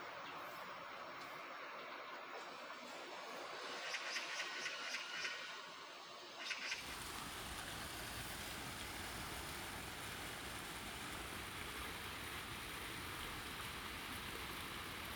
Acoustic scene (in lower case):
park